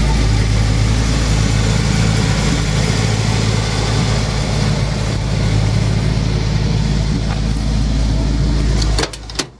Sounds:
vehicle
motor vehicle (road)
car

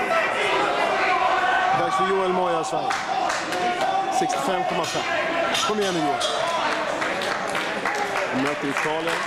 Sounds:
inside a large room or hall
speech

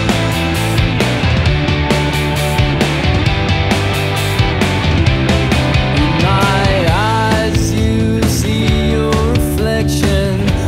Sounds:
grunge

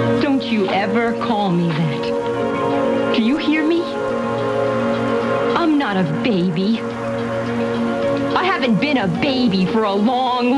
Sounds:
music
speech

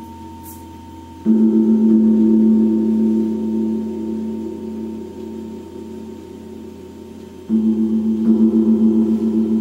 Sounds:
gong

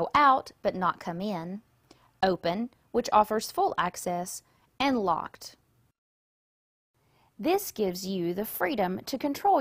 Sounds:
speech

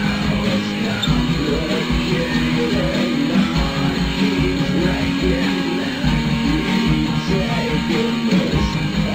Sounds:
music

